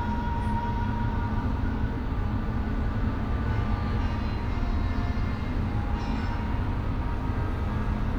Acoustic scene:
bus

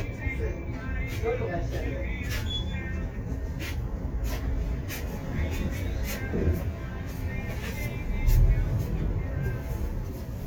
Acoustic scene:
bus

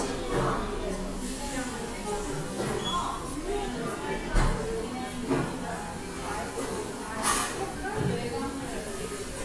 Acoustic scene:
cafe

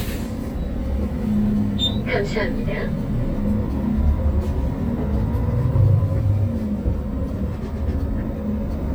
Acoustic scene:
bus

